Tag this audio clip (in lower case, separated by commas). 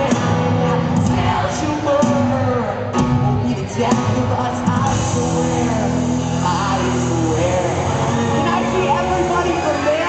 music, speech